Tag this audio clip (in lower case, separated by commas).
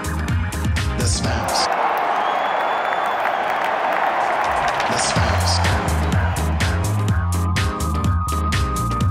music